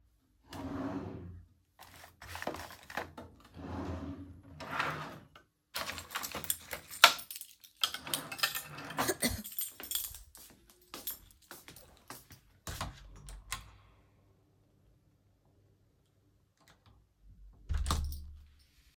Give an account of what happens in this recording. i open the drawers and searches for the key. Then finds it and let out a cough while walking to the door. Finally opens and then closes the door.